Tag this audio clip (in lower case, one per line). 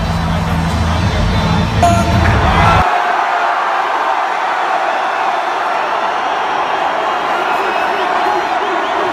cheering
music